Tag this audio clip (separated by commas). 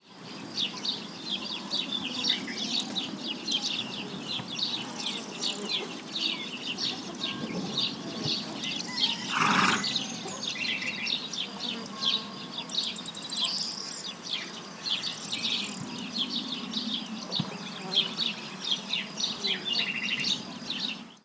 Animal, livestock